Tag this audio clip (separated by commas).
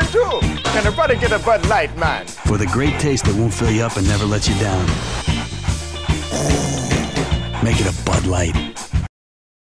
Music, Dog, Animal, Speech